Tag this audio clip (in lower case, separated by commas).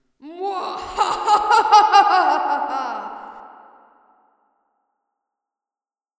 laughter, human voice